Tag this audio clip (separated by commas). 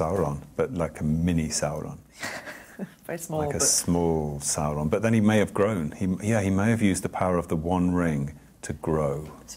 Speech, inside a small room